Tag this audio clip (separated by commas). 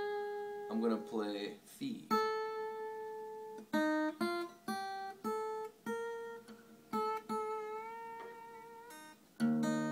Guitar, Music, Speech, slide guitar, Plucked string instrument, Musical instrument, Acoustic guitar